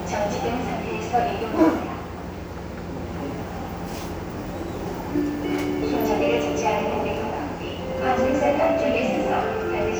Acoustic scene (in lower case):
subway station